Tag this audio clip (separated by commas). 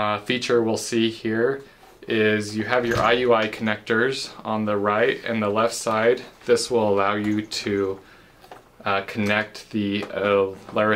Speech